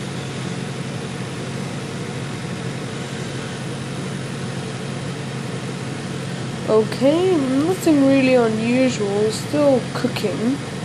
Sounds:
speech

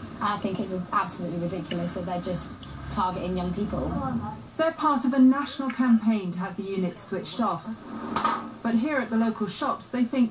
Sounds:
speech

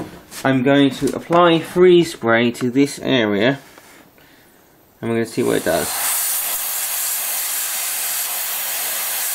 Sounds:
speech
hiss
steam

